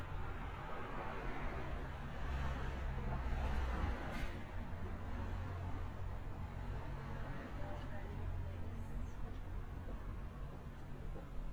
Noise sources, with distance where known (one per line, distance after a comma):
medium-sounding engine